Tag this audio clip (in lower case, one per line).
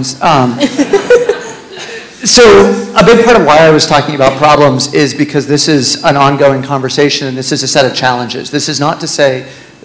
male speech